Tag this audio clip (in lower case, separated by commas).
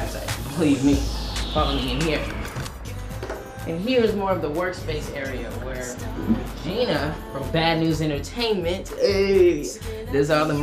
music, speech